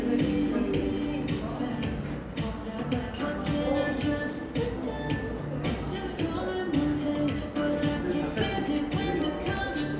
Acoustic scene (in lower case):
cafe